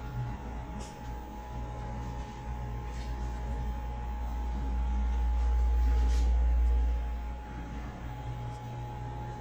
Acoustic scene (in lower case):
elevator